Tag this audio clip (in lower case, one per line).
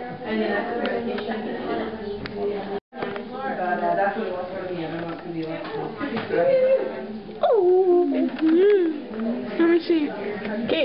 speech